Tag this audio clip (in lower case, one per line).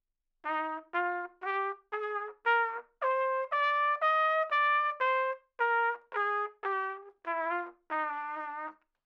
music
brass instrument
musical instrument
trumpet